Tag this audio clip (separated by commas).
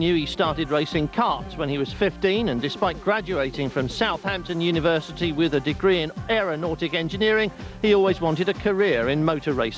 Music, Speech